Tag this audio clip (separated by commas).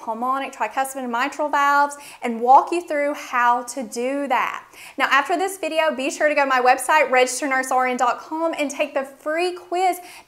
Speech